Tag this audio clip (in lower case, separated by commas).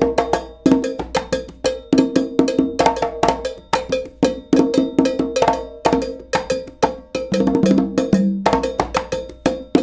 music